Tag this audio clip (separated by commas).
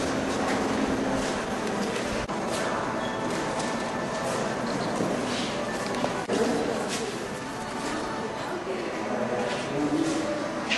Music, Speech